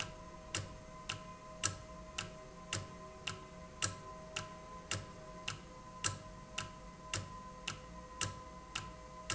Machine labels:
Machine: valve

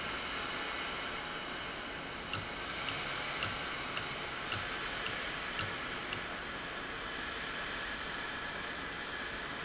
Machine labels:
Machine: valve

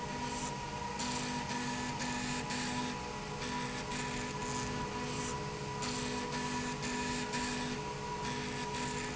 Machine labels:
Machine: slide rail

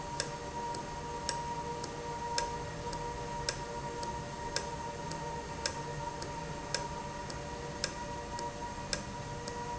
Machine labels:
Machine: valve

